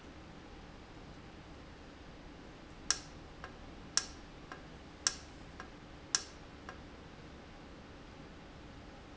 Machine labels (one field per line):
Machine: valve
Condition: normal